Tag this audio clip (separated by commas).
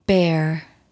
woman speaking, Speech, Human voice